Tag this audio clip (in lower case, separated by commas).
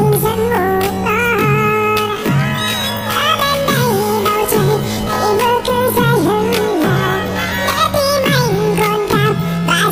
singing, music